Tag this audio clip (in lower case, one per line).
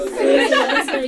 laughter
human voice